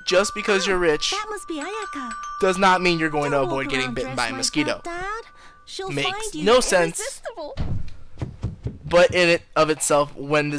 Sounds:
music, speech

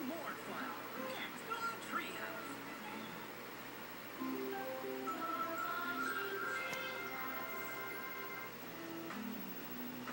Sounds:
speech, music

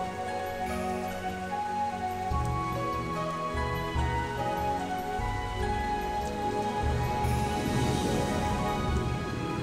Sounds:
music

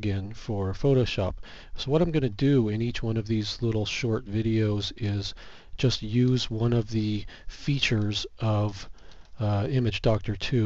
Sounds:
speech

